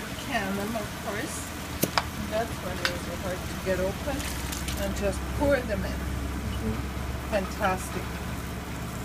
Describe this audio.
A woman speaks while a liquid pours